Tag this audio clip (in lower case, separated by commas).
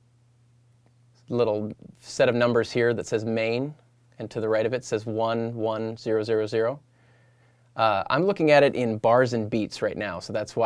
speech